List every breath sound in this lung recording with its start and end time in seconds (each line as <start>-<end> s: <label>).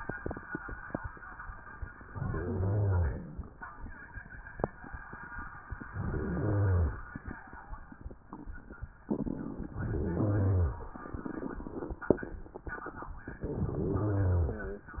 2.03-3.53 s: inhalation
2.03-3.53 s: rhonchi
5.92-7.06 s: inhalation
5.92-7.06 s: rhonchi
9.77-10.91 s: inhalation
9.77-10.91 s: rhonchi
13.72-14.86 s: inhalation
13.72-14.86 s: rhonchi